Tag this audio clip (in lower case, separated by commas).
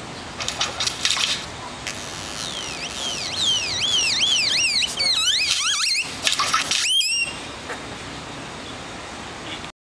tweet, bird, tweeting